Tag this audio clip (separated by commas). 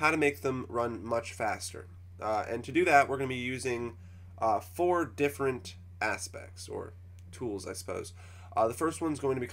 Speech